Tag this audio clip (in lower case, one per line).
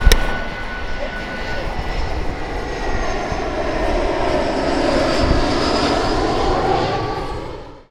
airplane
vehicle
aircraft